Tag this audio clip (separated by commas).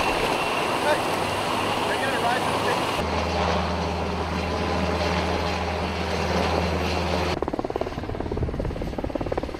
Speech, Helicopter, Vehicle